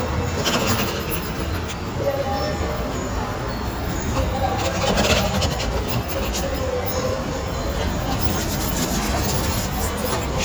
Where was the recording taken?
in a subway station